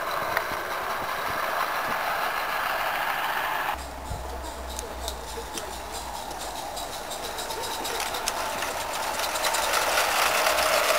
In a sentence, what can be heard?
Insects are croaking and making noise